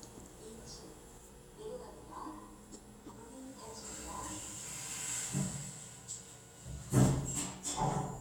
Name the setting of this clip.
elevator